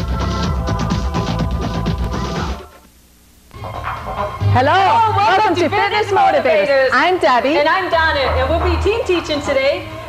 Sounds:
speech, music

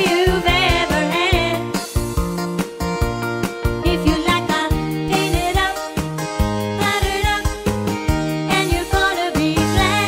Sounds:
country, music, jingle (music), singing

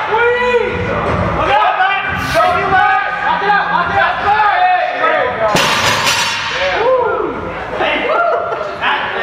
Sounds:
music, speech

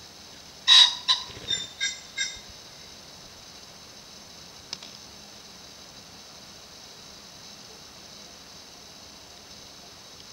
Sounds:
pheasant crowing

